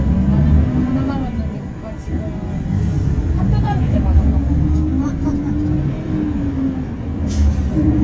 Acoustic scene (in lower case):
bus